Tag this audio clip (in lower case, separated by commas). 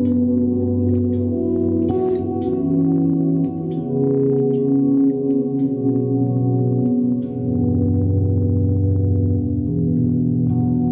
guitar, effects unit, ambient music, bass guitar, plucked string instrument, music, musical instrument